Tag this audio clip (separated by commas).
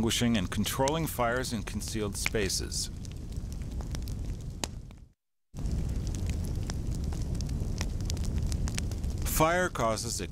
Speech, Fire